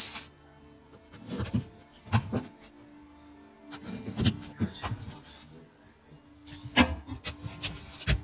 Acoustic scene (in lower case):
kitchen